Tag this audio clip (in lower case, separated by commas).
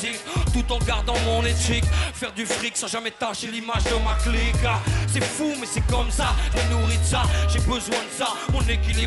music